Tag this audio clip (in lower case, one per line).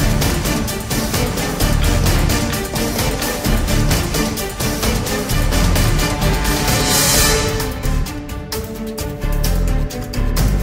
music